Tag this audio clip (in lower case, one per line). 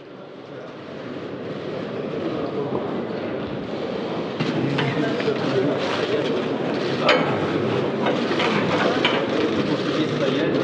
speech